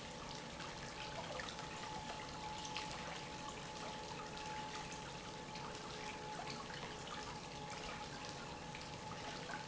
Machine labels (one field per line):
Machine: pump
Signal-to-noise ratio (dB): 6 dB